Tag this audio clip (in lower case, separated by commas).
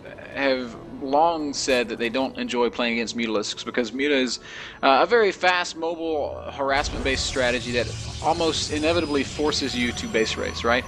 speech, music